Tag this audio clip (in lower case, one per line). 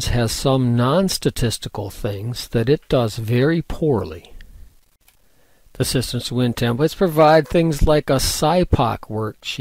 speech